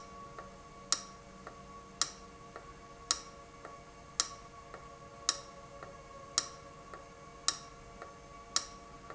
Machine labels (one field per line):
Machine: valve